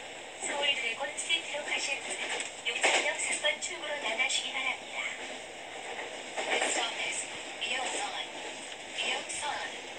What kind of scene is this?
subway train